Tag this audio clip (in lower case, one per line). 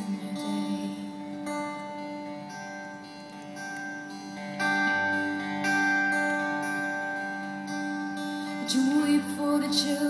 music